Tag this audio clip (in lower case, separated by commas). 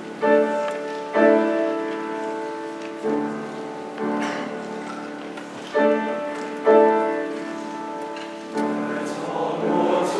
music, choir